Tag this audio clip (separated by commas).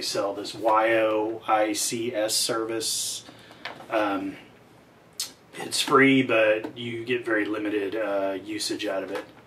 Speech